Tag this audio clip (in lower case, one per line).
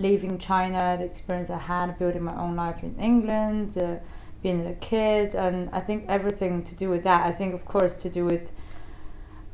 speech